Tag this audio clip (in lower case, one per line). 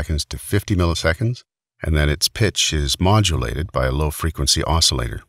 speech